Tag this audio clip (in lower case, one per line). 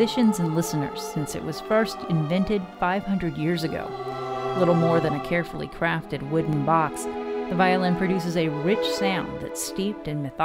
speech
music